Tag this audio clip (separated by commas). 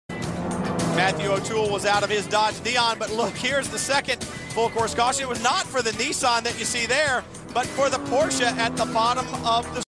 Car passing by, Speech, Music, Motor vehicle (road), Vehicle, Car